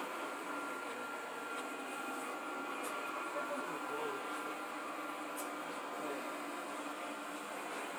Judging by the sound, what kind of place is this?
subway train